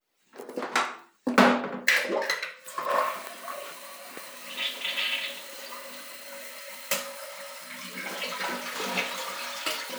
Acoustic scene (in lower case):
restroom